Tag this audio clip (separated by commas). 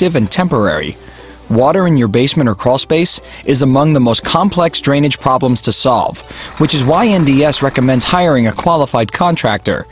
Music, Speech